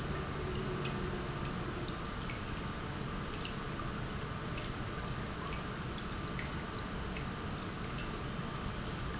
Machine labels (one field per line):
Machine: pump